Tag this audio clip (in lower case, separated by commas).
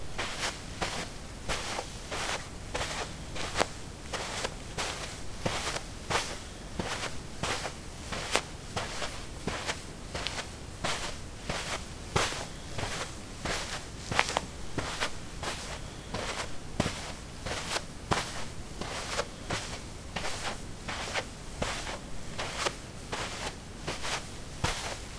walk